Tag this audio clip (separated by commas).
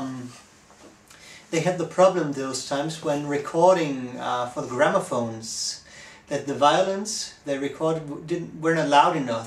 Speech